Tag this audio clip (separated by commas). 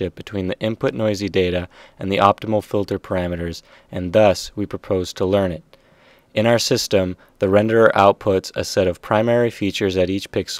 Speech